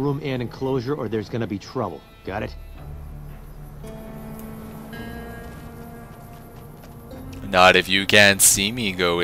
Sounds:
speech, music

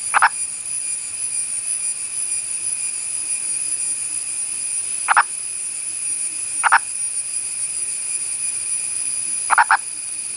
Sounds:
frog

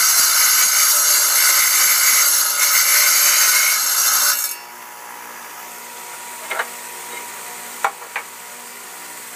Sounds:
tools

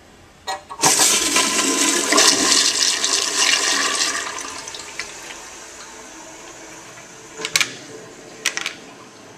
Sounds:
toilet flush, toilet flushing

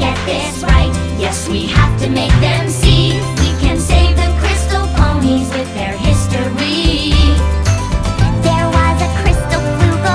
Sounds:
music for children

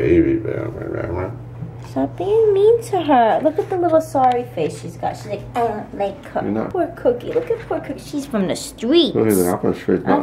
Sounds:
speech

